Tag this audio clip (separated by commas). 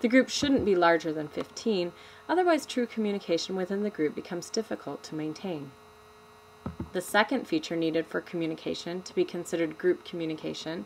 woman speaking, Speech, Narration